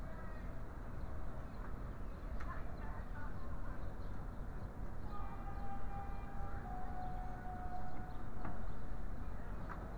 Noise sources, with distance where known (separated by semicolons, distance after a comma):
unidentified human voice